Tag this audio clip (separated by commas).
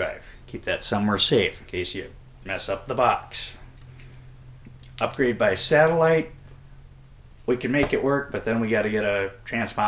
Speech, inside a small room